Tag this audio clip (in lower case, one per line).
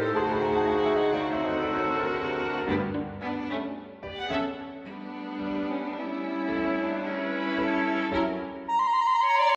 music